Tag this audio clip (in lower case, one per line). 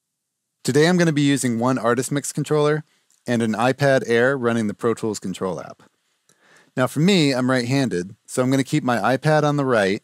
speech